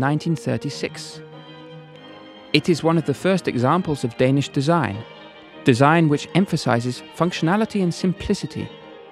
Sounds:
music
speech

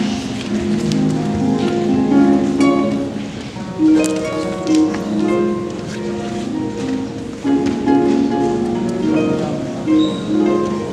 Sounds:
playing harp

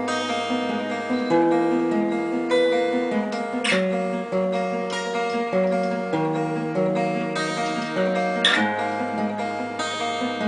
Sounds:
guitar
acoustic guitar
music
musical instrument
strum

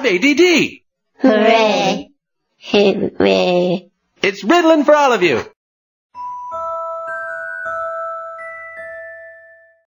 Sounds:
music
speech

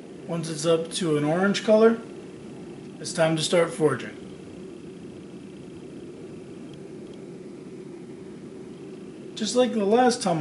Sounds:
speech

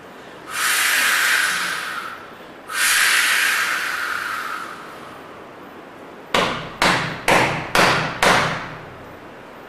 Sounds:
speech
breathing

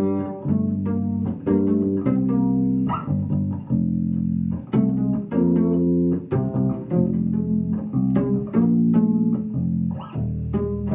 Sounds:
plucked string instrument
music
bowed string instrument
bass guitar
playing bass guitar
musical instrument
inside a small room

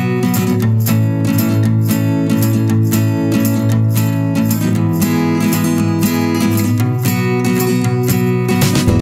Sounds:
music

